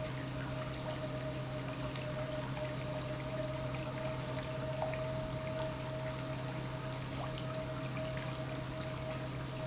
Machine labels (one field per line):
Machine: pump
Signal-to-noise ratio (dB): -6 dB